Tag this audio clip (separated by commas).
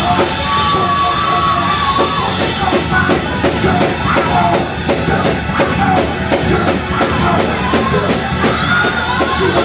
Choir, Music